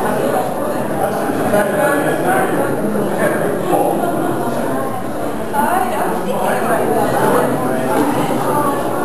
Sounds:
speech
inside a large room or hall

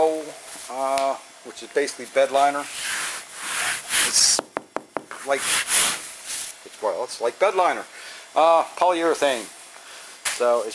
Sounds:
speech

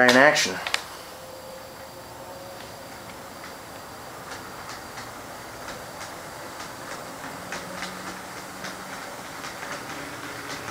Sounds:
clickety-clack

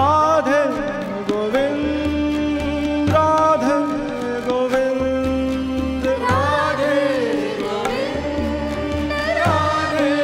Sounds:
singing
carnatic music
music

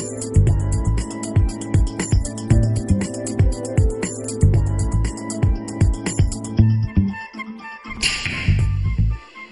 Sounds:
arrow

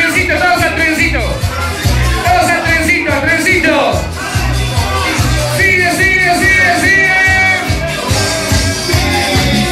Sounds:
music
disco
speech

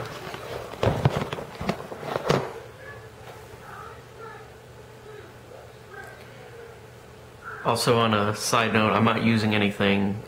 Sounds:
television
speech

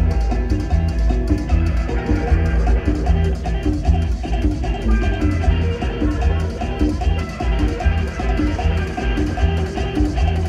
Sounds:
rhythm and blues
music

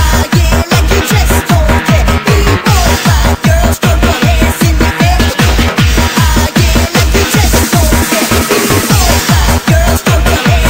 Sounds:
music
techno
electronic music

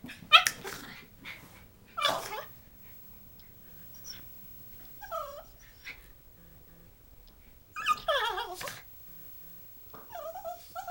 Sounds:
breathing
domestic animals
dog
animal

